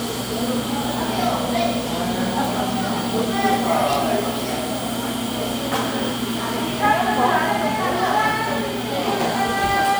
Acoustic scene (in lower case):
cafe